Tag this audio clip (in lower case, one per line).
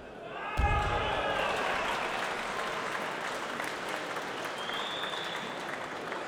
human group actions
cheering
applause